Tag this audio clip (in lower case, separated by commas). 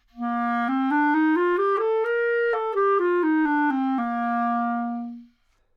music, wind instrument, musical instrument